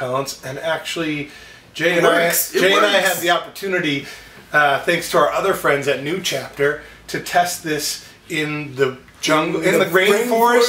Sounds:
Speech

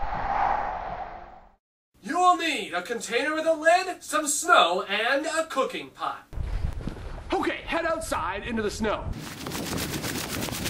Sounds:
Speech

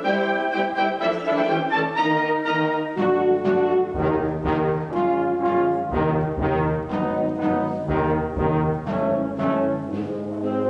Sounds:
Traditional music, Music

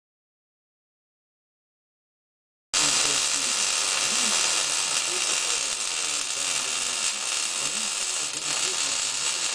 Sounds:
Speech, Silence

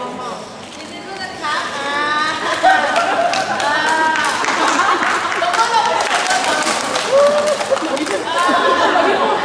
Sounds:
Speech

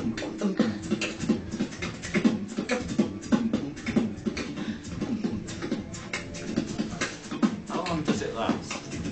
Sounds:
Speech, Beatboxing

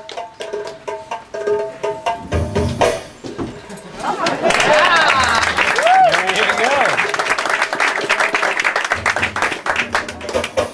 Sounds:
Music, Speech

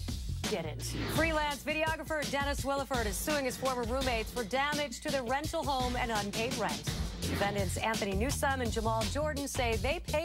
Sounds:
Speech, Music

